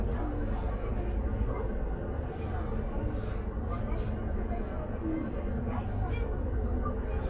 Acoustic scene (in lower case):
bus